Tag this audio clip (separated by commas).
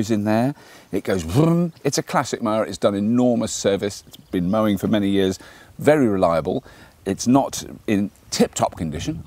Speech